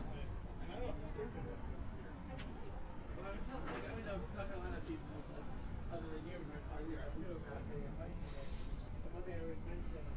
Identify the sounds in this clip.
person or small group talking